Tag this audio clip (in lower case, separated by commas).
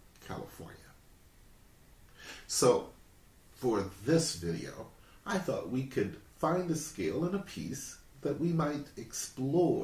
speech